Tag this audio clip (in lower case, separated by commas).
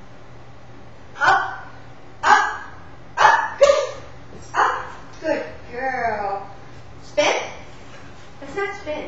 speech